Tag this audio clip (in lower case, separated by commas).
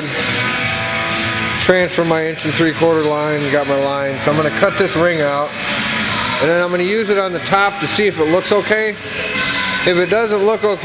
music, speech